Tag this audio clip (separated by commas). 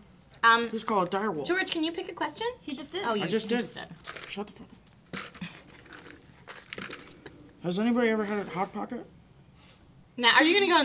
inside a small room, Speech